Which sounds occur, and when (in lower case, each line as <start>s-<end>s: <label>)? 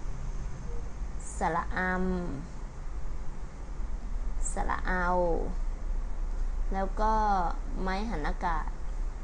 0.0s-9.2s: mechanisms
0.6s-0.8s: brief tone
1.2s-2.6s: woman speaking
4.4s-5.6s: woman speaking
6.7s-7.5s: woman speaking
7.8s-8.7s: woman speaking
8.8s-9.0s: generic impact sounds